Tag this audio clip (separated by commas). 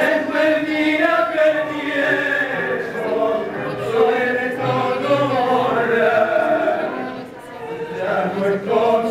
Music, Speech, Male singing